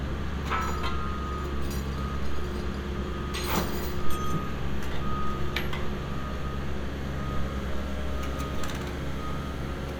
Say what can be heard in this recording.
reverse beeper